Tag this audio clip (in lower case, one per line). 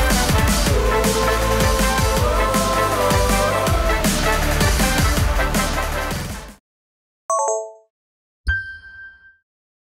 music